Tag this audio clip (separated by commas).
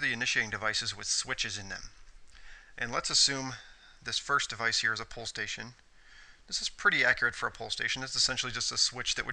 Speech